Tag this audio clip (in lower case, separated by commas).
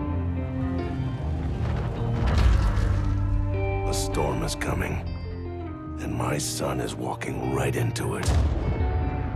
music, speech